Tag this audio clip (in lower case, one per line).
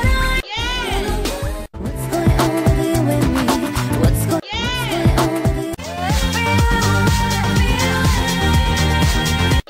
music